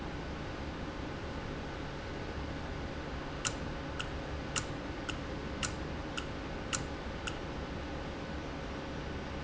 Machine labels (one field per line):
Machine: valve